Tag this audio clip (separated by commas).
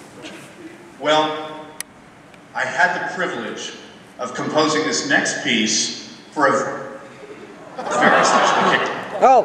Speech, inside a large room or hall